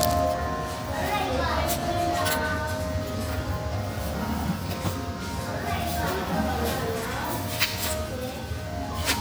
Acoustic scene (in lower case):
cafe